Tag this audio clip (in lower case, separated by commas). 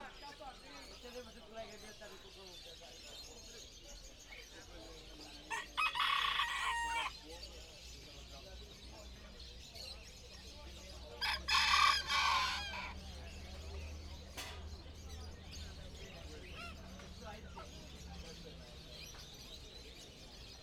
animal, livestock, rooster, fowl